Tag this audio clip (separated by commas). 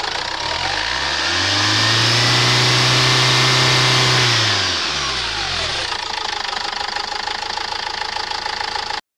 Engine, Idling, Vehicle, Medium engine (mid frequency)